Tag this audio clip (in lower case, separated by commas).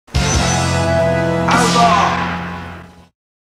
music, speech